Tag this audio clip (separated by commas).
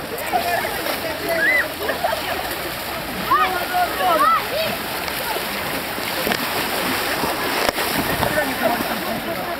splashing water